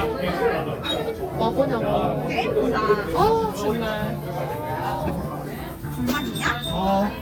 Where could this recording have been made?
in a crowded indoor space